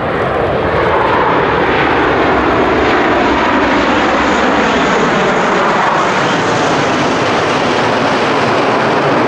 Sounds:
airplane flyby

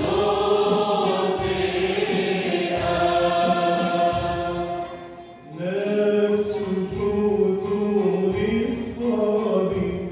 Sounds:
Choir, Music, Singing

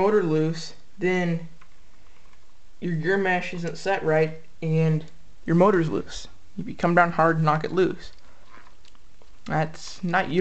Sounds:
Speech

